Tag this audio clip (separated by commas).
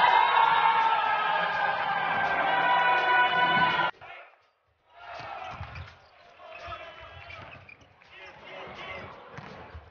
playing volleyball